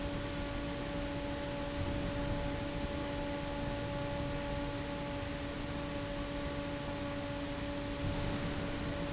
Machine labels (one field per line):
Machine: fan